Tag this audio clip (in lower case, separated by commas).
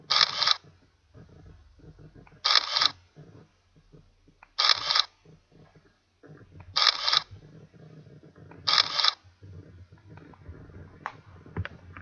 mechanisms, camera